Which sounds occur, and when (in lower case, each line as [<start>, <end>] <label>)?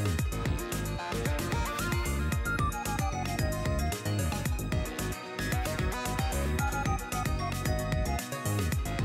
[0.00, 9.04] music